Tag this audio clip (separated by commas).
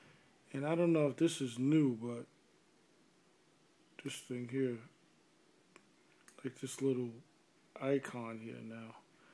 Speech